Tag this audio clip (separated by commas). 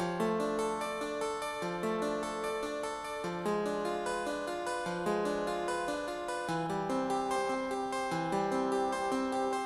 playing harpsichord